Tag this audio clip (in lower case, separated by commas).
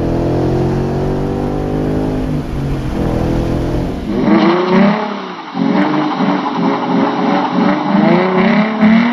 motor vehicle (road), vehicle, tire squeal, car